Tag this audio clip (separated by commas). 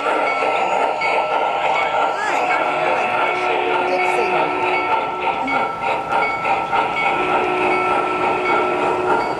Speech